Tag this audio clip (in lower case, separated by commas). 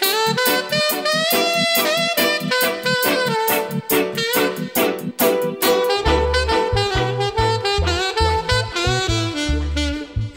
music